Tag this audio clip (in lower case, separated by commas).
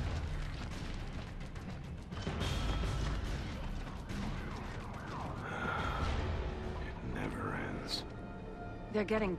speech, music